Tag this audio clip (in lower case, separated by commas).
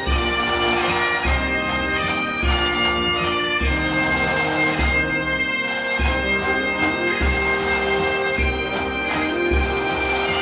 bagpipes, music